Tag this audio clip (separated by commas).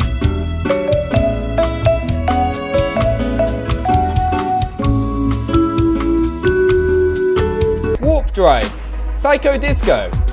Speech, Music